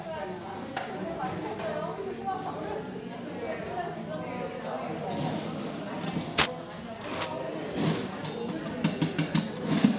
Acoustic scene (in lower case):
cafe